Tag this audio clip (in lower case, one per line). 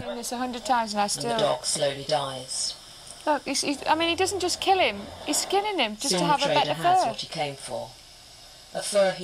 speech